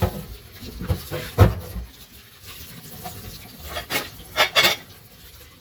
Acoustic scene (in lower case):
kitchen